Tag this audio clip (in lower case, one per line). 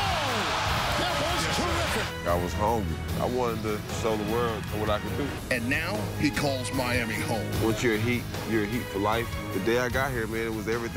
speech
music